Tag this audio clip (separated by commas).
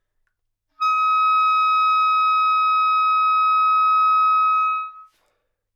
Music, Musical instrument, woodwind instrument